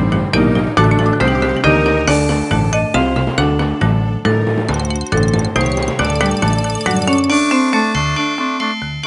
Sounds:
Music, Percussion

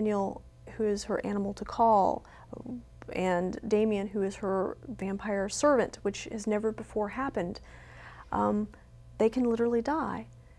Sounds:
Speech, inside a small room

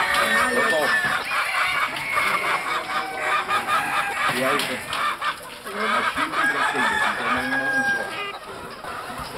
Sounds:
livestock, Bird, Speech, rooster, Fowl

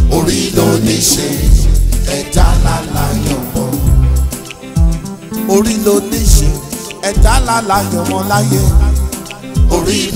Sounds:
Reggae, Music, Music of Africa, Afrobeat

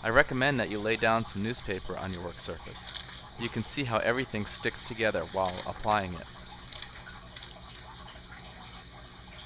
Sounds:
Water

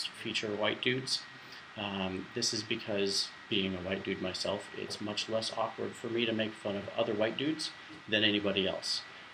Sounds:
Speech

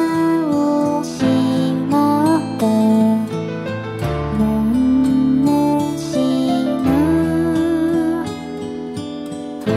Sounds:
Lullaby, Music

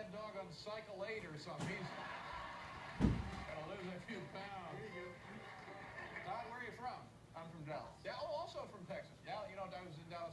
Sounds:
Speech

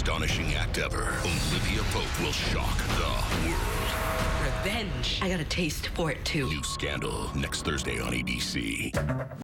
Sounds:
Whack, Speech, Music

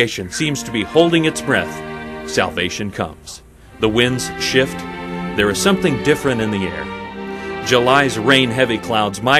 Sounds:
Speech, Music

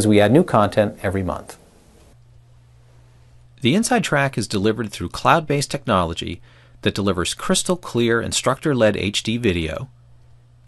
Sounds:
Speech

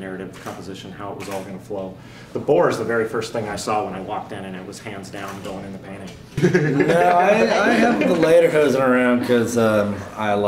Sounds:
Speech

